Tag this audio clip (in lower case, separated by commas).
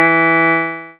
piano, music, keyboard (musical), musical instrument